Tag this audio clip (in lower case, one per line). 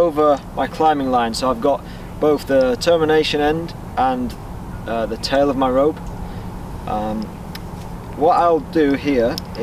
speech